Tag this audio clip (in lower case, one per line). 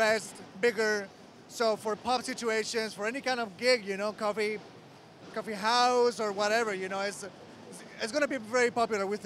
speech